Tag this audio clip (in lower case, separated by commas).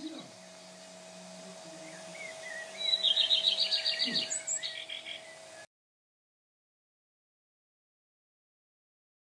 tweet, bird, bird vocalization